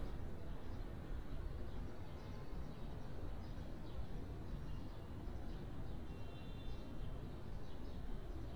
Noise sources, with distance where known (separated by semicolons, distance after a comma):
car horn, far